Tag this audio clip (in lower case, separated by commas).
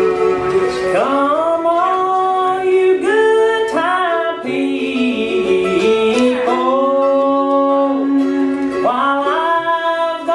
musical instrument, music